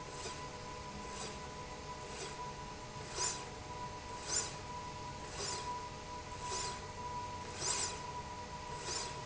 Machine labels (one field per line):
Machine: slide rail